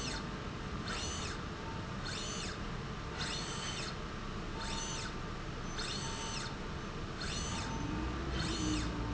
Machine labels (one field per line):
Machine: slide rail